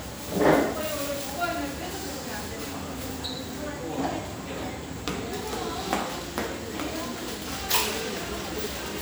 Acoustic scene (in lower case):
restaurant